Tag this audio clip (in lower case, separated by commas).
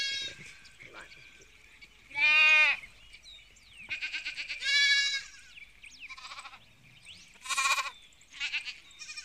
bird, bird call, chirp